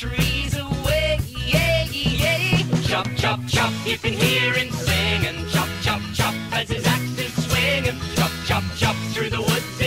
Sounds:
music

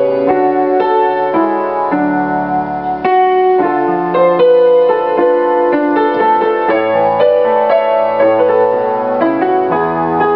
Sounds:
music

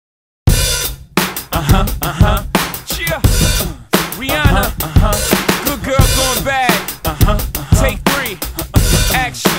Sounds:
music, bass drum

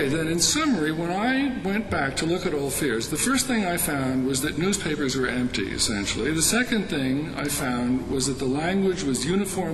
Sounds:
male speech, speech, narration

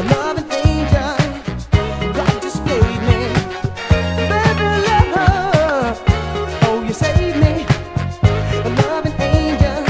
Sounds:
music, funk, soul music

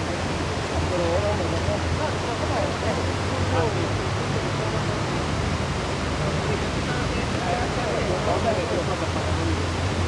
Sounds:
speech

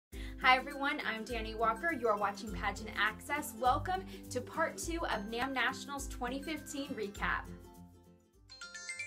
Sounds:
glockenspiel, music, inside a small room, speech

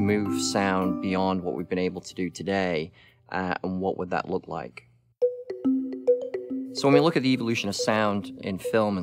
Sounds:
speech, music

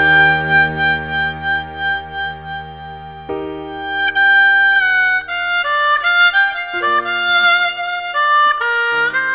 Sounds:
woodwind instrument, harmonica

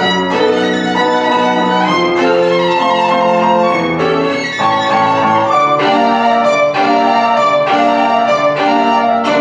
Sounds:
fiddle, musical instrument, bowed string instrument, inside a large room or hall, music

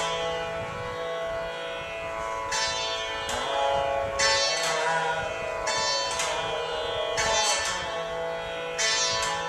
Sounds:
musical instrument, carnatic music, classical music, plucked string instrument, music, sitar

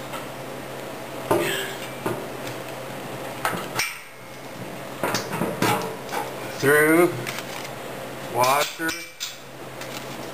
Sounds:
speech

